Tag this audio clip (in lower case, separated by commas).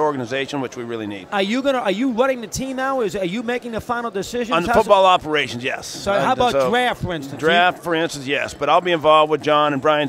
speech